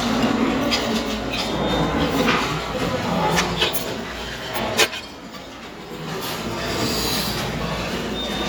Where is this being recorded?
in a restaurant